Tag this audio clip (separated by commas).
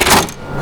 Mechanisms